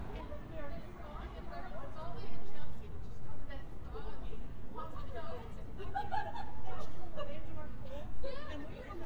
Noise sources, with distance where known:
background noise

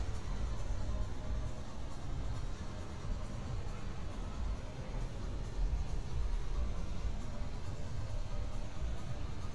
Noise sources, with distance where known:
engine of unclear size

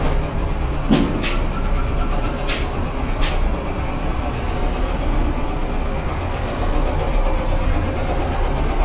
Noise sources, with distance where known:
large-sounding engine, near; unidentified impact machinery

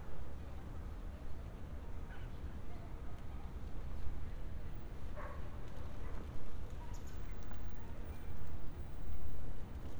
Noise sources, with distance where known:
dog barking or whining, far

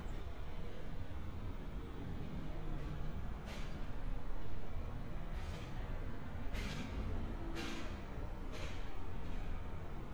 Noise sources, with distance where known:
engine of unclear size

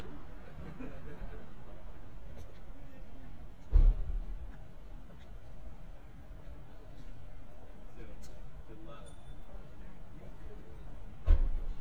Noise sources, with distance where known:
person or small group talking

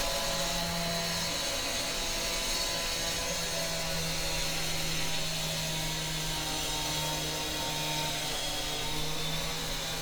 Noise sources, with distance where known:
large rotating saw, near

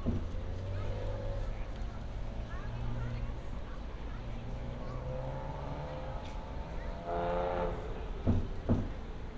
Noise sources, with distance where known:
medium-sounding engine; person or small group talking, far

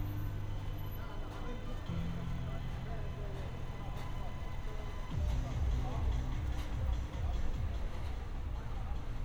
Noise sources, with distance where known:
music from a fixed source

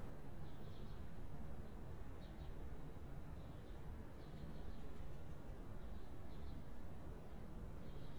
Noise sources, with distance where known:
background noise

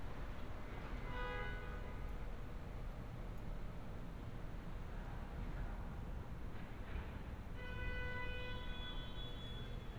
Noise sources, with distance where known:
car horn, far

